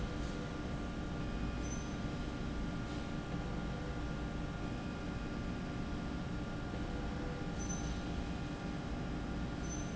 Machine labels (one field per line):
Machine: slide rail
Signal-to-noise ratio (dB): -6 dB